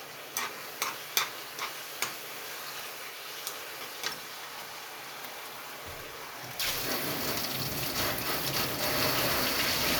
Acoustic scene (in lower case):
kitchen